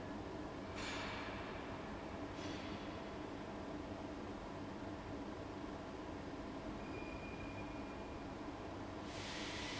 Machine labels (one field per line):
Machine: fan